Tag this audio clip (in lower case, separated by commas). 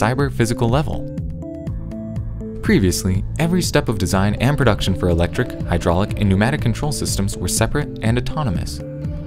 speech, speech synthesizer, music